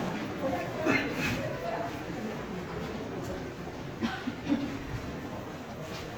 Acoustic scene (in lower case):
crowded indoor space